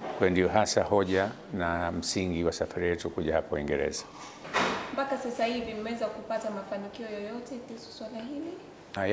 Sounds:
Speech, woman speaking

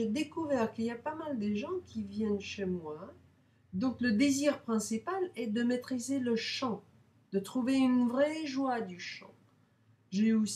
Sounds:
Speech

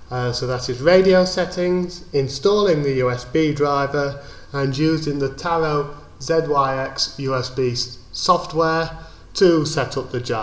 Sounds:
Radio, Speech

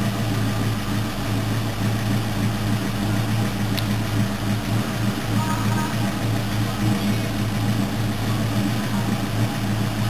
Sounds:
Vehicle

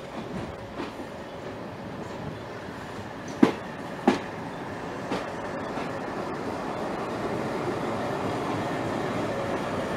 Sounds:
Train, train wagon, Rail transport, Vehicle

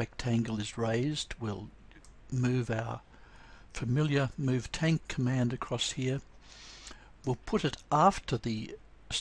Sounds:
Speech

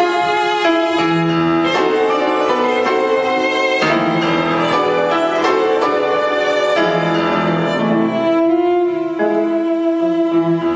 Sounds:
Music, Cello, Piano, Bowed string instrument, Musical instrument

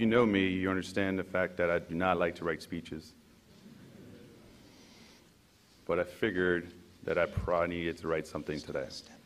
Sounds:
monologue, Speech, Male speech

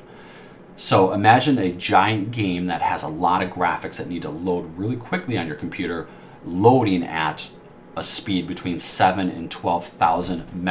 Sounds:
Speech

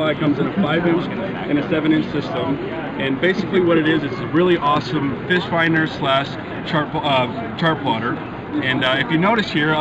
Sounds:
Speech

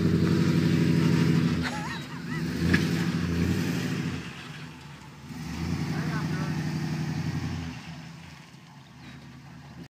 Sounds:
Car, Speech, Vehicle

